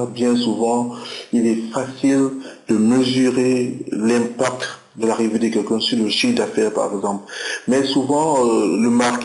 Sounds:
Speech

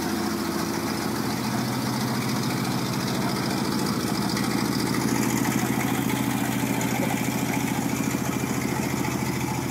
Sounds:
Truck, Vehicle

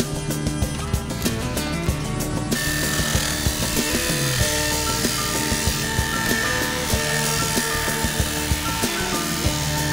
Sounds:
Music

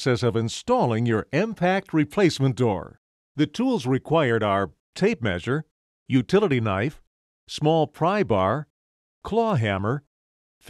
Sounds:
Speech

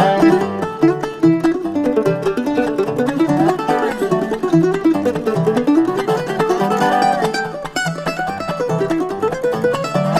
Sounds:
Music, Mandolin

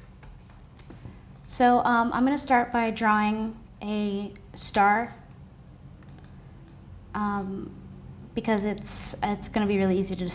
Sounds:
Speech, inside a small room

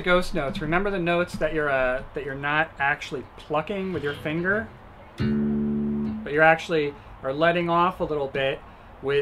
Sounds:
Plucked string instrument, Speech, Guitar, Musical instrument, Acoustic guitar

